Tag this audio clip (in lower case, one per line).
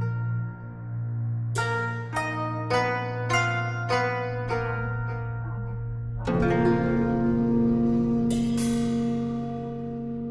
music